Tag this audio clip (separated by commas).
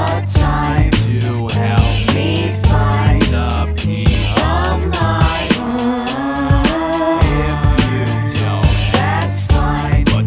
Music